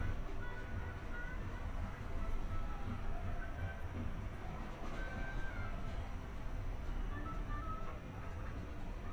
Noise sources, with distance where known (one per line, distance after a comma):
music from a fixed source